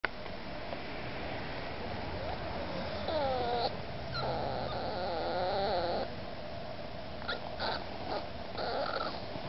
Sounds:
domestic animals
animal
dog

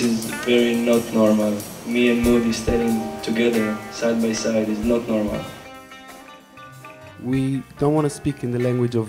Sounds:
speech
music

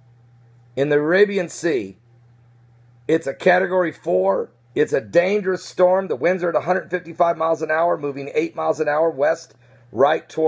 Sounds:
speech

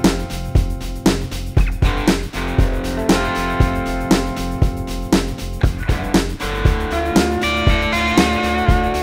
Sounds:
music
guitar
electric guitar
musical instrument
plucked string instrument

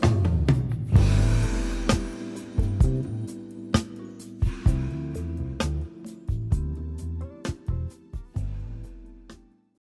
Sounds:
music

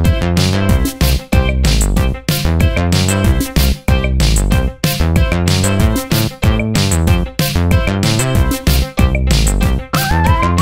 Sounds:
music

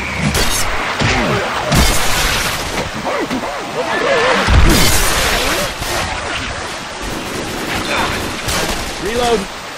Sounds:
speech

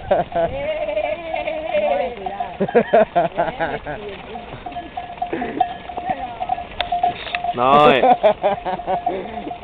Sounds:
sheep bleating

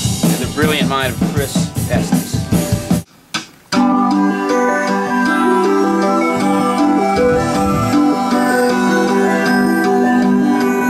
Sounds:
speech
music

